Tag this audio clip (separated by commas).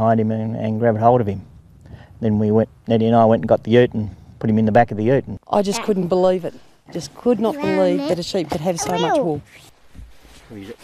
Speech